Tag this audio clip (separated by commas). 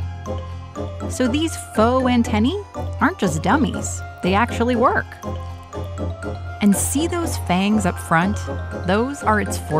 mosquito buzzing